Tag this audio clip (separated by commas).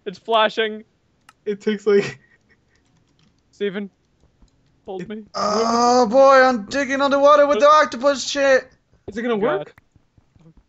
Speech